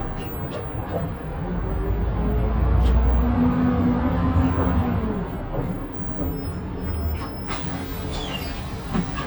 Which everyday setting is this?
bus